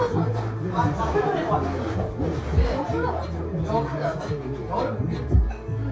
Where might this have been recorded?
in a cafe